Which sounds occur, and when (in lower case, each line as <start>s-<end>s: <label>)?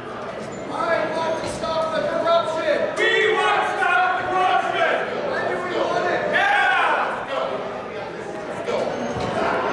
0.0s-9.7s: hubbub
0.0s-9.7s: mechanisms
0.2s-0.3s: generic impact sounds
1.4s-1.6s: generic impact sounds
1.8s-1.9s: tick
9.2s-9.4s: generic impact sounds